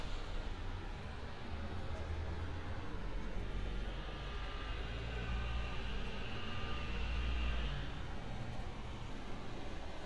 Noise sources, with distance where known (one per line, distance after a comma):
engine of unclear size
reverse beeper, far